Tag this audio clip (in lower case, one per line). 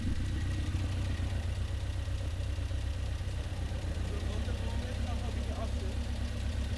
speech
male speech
idling
engine
motor vehicle (road)
vehicle
car
human voice